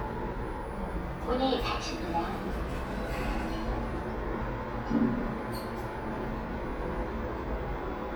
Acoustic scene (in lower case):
elevator